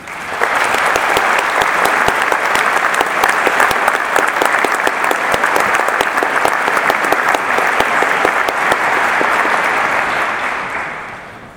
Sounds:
Human group actions, Applause

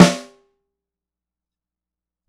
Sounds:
Drum, Percussion, Snare drum, Music, Musical instrument

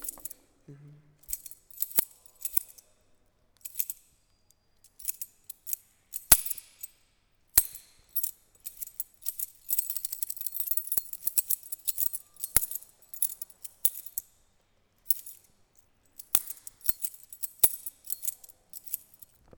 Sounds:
Keys jangling, home sounds

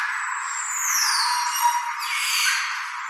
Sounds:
Wild animals, Bird, Animal

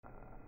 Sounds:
Boiling, Liquid

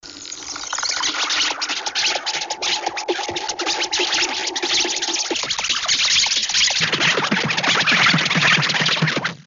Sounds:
Animal, Insect, Wild animals

